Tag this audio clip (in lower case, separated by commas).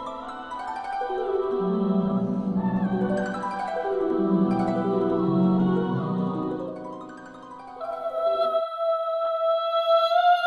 percussion, marimba